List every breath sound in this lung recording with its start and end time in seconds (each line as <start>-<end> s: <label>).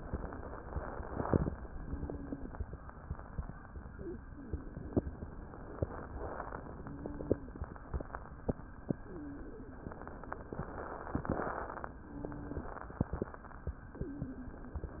0.00-1.50 s: inhalation
1.71-2.77 s: exhalation
1.75-2.55 s: wheeze
5.45-6.65 s: inhalation
6.70-7.70 s: exhalation
6.74-7.54 s: wheeze
7.74-8.72 s: inhalation
8.87-9.85 s: exhalation
9.01-9.81 s: wheeze
10.56-11.92 s: inhalation
11.92-12.87 s: exhalation
12.00-12.81 s: wheeze
12.97-13.91 s: inhalation
13.89-14.84 s: exhalation
13.91-14.72 s: wheeze